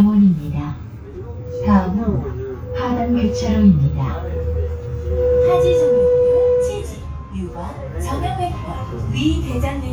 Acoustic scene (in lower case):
bus